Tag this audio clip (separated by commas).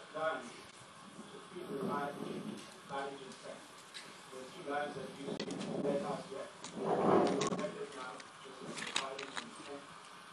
Speech